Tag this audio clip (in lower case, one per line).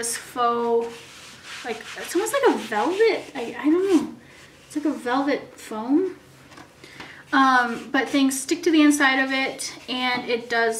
rub